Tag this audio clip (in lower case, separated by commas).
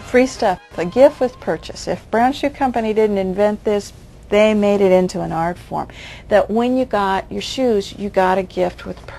speech, inside a small room